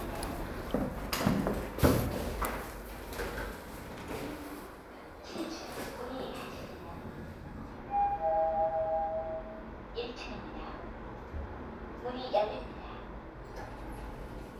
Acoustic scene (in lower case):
elevator